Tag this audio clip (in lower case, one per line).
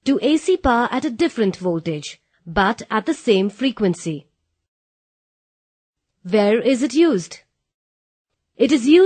speech